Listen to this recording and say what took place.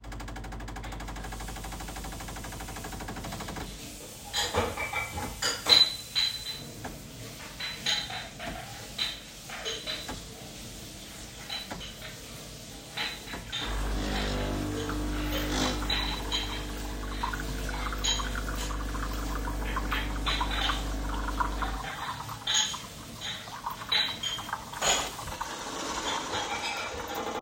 I started the coffee machine and immediately turned on the tap to rinse dishes creating overlapping machine and water sounds. While the coffee machine was still running and the water flowing I began clattering cutlery and dishes in the sink. All three sounds were clearly audible and overlapping throughout the scene.